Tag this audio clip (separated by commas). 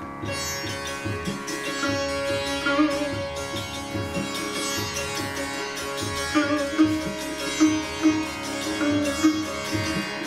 playing sitar